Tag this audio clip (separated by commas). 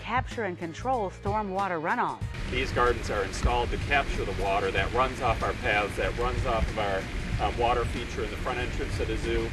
Rustle